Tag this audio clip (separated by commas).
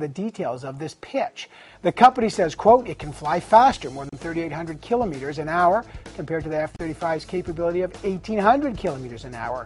Music, Speech